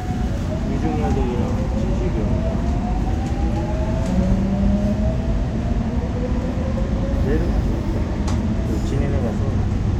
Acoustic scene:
subway train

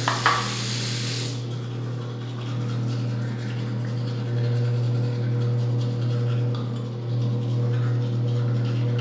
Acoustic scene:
restroom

